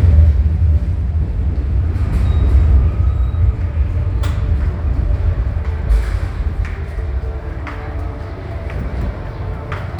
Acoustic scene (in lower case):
subway station